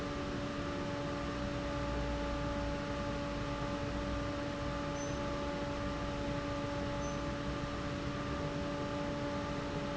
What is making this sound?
fan